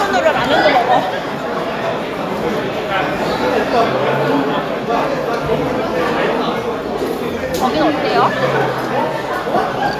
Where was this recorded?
in a restaurant